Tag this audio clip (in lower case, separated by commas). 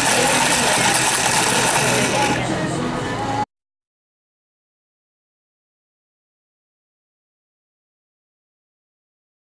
speech, music